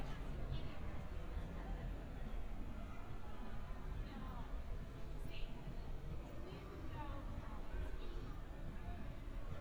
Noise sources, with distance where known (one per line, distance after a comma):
person or small group talking